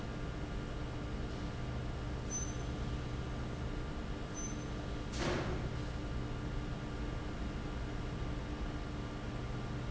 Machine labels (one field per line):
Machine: fan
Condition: abnormal